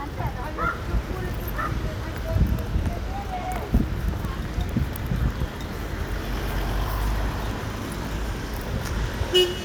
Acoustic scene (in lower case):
residential area